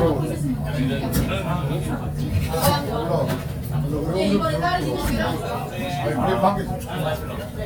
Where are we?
in a restaurant